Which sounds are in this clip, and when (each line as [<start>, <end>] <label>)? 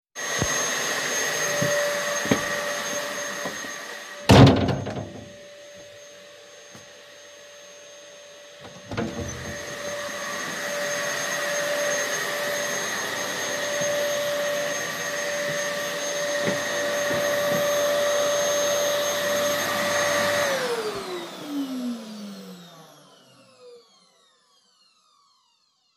[0.14, 23.97] vacuum cleaner
[2.10, 2.56] footsteps
[4.18, 5.31] door
[8.74, 9.37] door